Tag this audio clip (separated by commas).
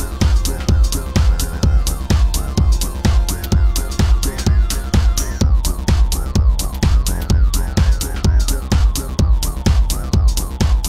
Electronic music, Music